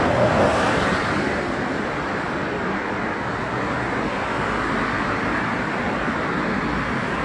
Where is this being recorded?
on a street